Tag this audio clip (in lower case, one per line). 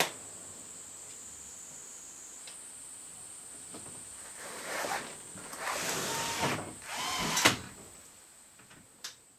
opening or closing car electric windows